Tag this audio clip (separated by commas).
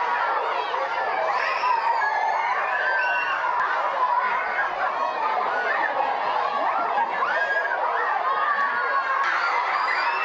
Speech